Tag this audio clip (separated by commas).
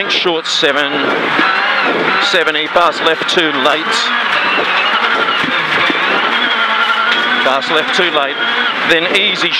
Vehicle, Car, Speech